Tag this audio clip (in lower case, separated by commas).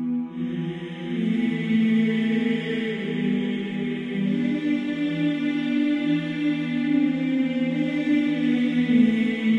theme music, music